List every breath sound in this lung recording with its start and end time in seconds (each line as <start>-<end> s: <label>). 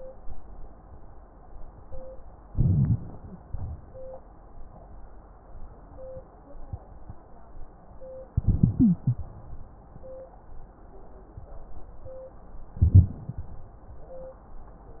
2.49-3.01 s: inhalation
2.49-3.01 s: crackles
3.46-3.81 s: exhalation
8.36-9.30 s: inhalation
8.78-8.97 s: wheeze
12.79-13.21 s: inhalation
12.79-13.21 s: crackles